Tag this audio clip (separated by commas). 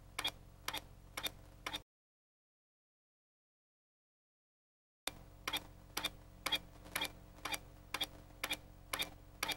Ping